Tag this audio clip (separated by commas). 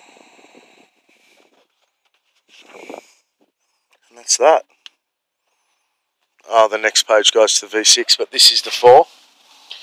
Speech, inside a small room